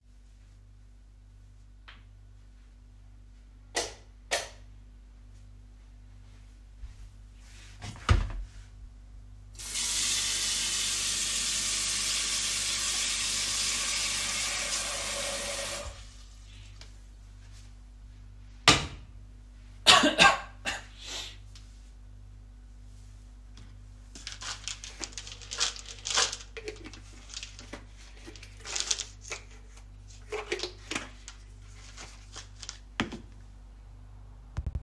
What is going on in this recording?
I turned on the kitchen light, picked up a pan and filled it with water. I put it on the stove, coughed and searched for my magnesium supplement. Then I closed the supplement bottle.